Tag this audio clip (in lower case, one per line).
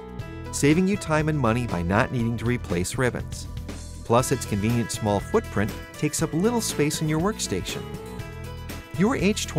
music
speech